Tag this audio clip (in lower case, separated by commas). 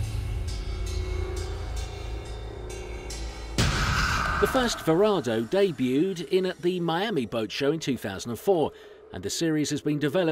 speech, music